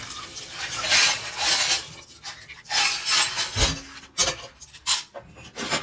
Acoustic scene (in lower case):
kitchen